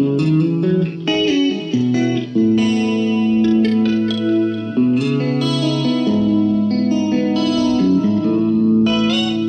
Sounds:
Music, Effects unit

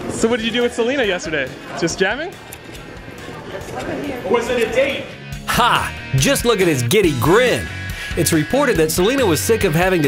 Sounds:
Music, Speech

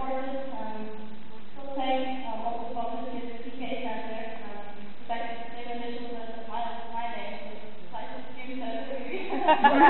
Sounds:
Speech, woman speaking

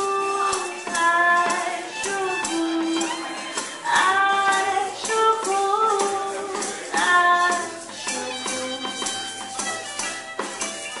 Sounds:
Speech, Musical instrument, Singing, Music

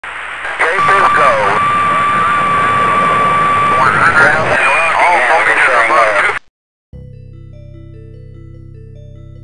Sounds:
Sound effect, Speech

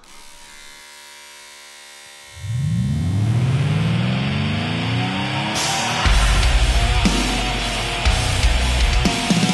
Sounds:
electric razor, Punk rock, Music, Heavy metal

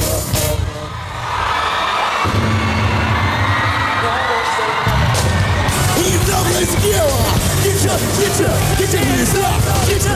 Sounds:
Music, Angry music, Independent music, Blues, Rhythm and blues

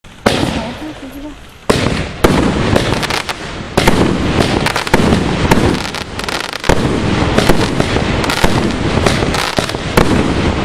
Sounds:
Firecracker, Speech, Fireworks

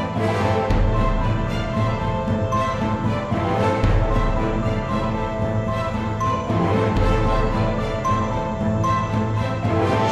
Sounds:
Music

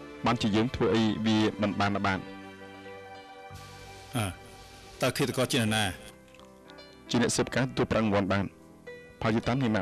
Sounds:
Music, Speech

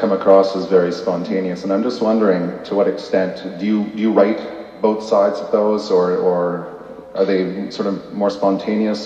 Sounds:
Speech

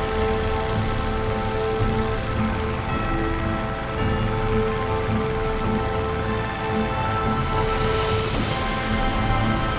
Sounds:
Music

